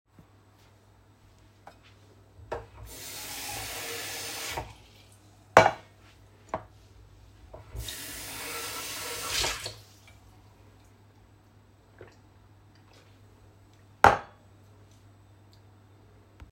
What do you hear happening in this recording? I pour water into the coffee maker and then also in a glass. I then proceed to drink the water and put the glass down.